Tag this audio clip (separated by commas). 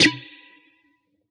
Musical instrument, Guitar, Plucked string instrument, Music